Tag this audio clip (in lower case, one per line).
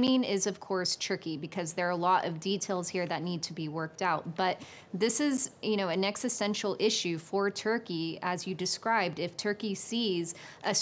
speech